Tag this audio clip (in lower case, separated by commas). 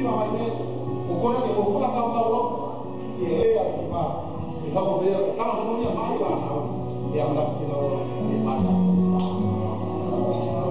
speech, music